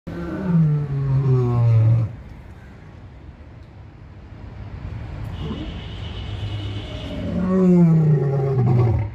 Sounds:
lions roaring

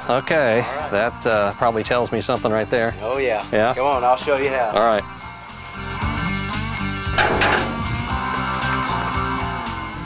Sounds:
Speech, Music

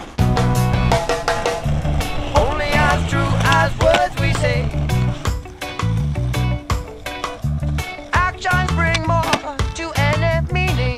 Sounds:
Skateboard

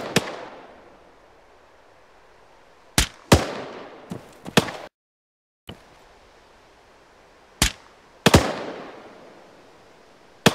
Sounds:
Sound effect

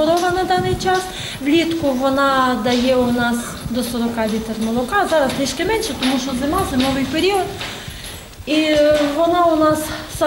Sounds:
Speech

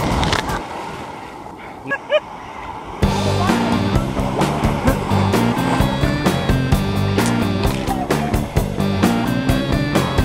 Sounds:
Ocean, Music, outside, rural or natural

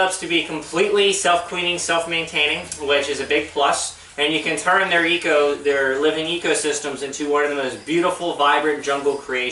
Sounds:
Speech

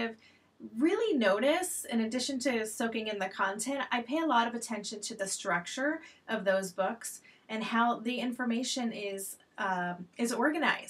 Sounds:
Speech

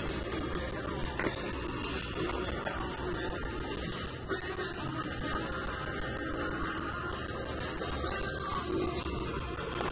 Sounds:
Music

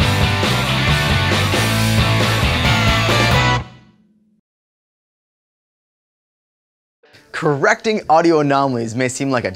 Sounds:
Music, Speech

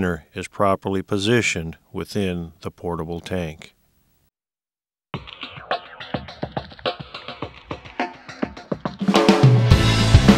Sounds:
Music, Speech

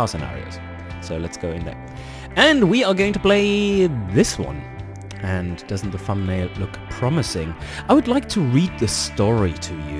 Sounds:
Speech, Music

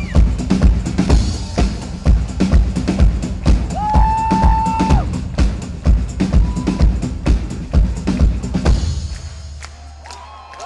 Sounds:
Music, Disco, Funk

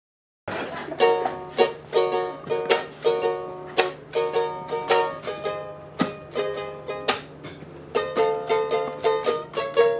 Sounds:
Music, Mandolin

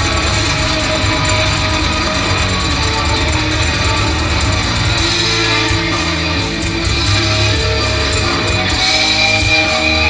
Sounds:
Music

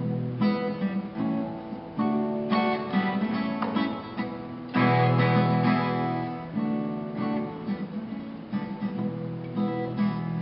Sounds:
Music

